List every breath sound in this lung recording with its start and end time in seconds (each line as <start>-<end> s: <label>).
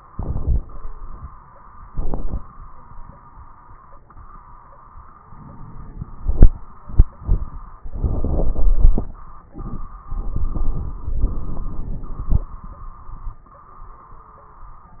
5.23-6.18 s: inhalation
5.23-6.18 s: crackles